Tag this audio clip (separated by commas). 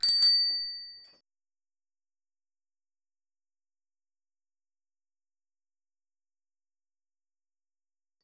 Alarm, Vehicle, Bicycle, Bell, Bicycle bell